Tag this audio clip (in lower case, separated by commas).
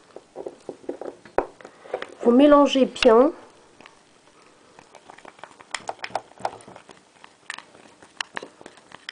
speech